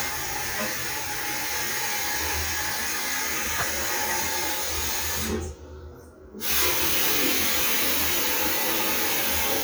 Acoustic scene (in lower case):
restroom